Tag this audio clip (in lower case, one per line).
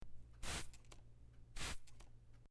liquid